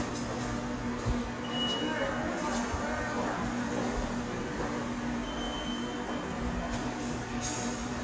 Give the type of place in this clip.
subway station